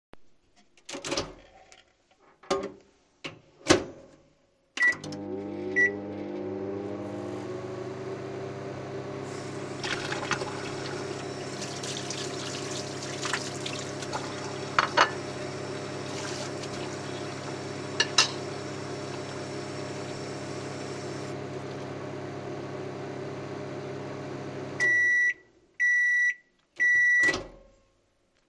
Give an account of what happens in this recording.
I opened the door of the microwave and placed a plastic bowl inside, closed the door, set the timer and started it. While it was running, I turned on the water and washed a plate and put it on the worktop next to the sink. Then I washed a spoon and put it on the plate. I turned off the water. Then the microwave beeped and I opened its door.